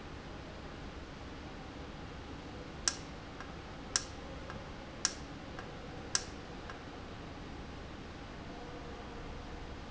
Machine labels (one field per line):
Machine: valve